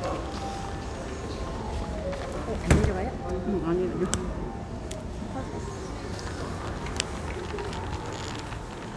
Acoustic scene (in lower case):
crowded indoor space